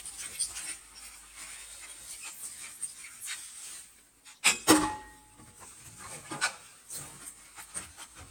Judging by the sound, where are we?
in a kitchen